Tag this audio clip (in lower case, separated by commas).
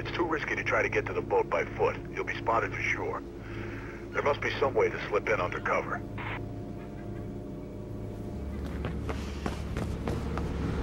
speech, music